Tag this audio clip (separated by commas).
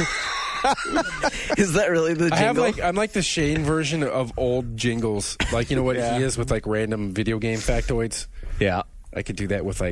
Speech, Radio